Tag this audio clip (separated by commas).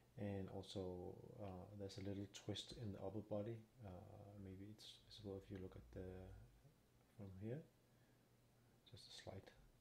Speech